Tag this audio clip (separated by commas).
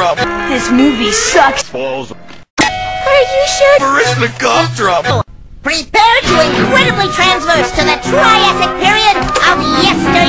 Music, Speech